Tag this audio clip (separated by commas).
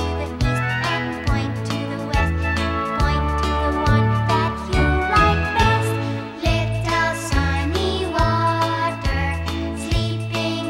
Music